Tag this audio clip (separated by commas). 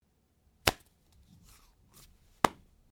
Hands